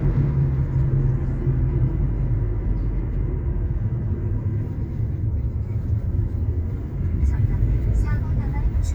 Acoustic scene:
car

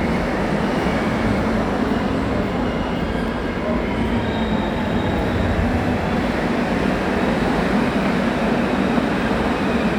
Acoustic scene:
subway station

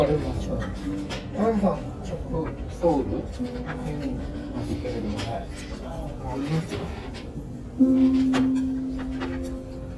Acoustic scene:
restaurant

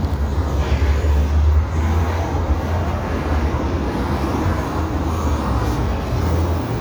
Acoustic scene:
street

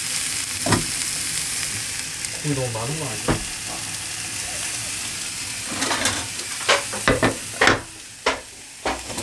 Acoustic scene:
kitchen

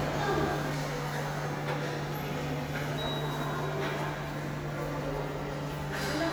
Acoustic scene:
subway station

